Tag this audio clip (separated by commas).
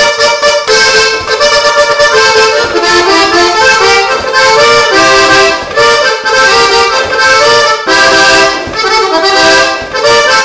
playing accordion